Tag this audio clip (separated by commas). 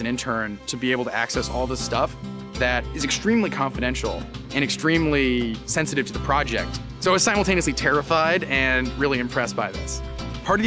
Music, Speech